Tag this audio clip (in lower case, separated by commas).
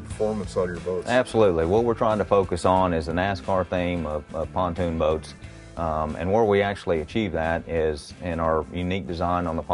speech, music